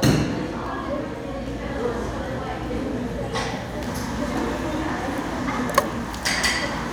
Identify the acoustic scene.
cafe